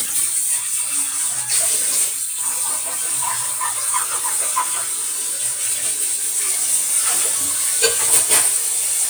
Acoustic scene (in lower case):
kitchen